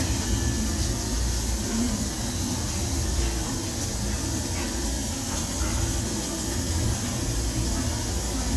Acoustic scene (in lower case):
restaurant